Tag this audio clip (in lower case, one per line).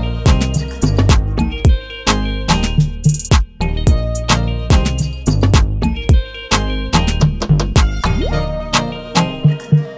music